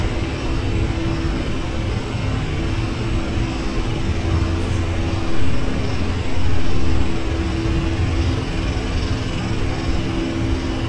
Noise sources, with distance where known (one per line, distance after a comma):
jackhammer